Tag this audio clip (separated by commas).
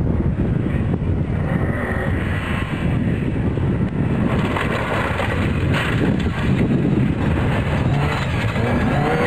Car, Race car, outside, rural or natural